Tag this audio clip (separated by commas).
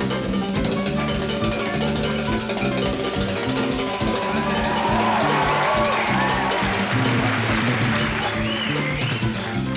playing timbales